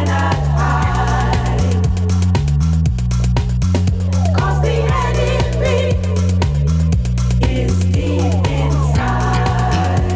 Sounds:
Music

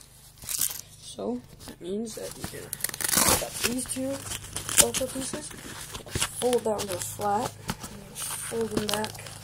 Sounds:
Speech, inside a small room

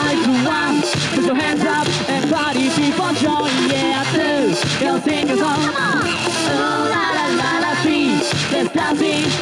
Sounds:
Music

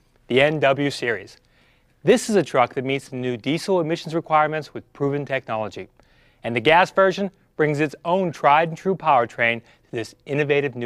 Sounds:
Speech

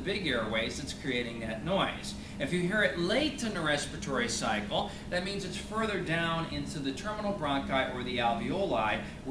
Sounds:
Speech

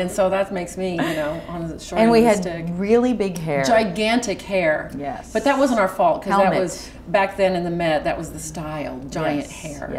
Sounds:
inside a small room, Speech

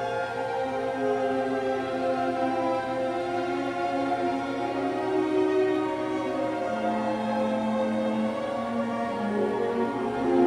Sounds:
Musical instrument, Orchestra, Violin, Music

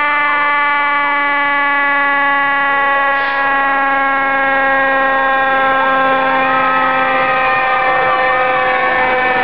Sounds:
Siren, Emergency vehicle, Vehicle, fire truck (siren)

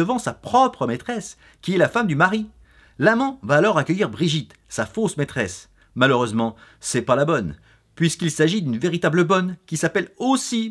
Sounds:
Speech

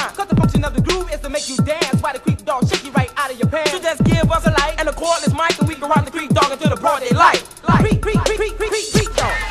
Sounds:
Music

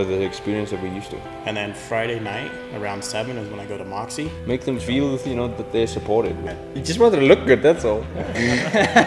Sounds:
Speech, Music

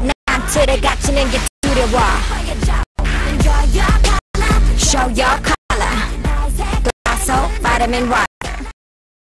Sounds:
Music, Speech

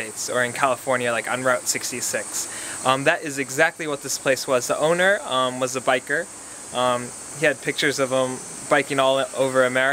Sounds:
Speech

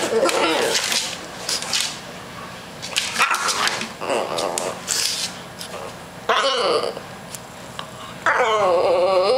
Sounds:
Animal, Domestic animals, Dog

